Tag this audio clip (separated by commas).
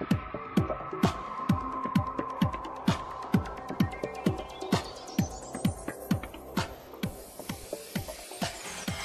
Music